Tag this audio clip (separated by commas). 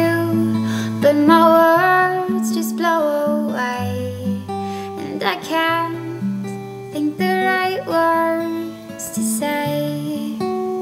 Music